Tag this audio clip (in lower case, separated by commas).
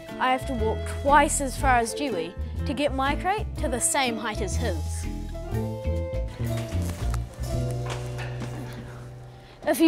music, speech